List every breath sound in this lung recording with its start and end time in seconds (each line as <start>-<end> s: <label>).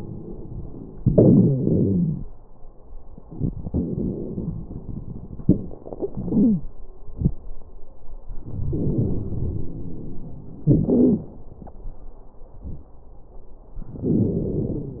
0.97-2.24 s: exhalation
0.97-2.24 s: wheeze
3.28-5.42 s: inhalation
3.28-5.42 s: crackles
5.44-6.65 s: exhalation
6.13-6.65 s: wheeze
8.44-10.64 s: inhalation
8.44-10.64 s: crackles
10.69-11.31 s: exhalation
10.69-11.31 s: crackles
13.96-15.00 s: inhalation
13.96-15.00 s: crackles